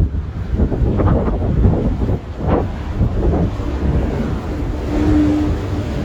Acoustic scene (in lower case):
street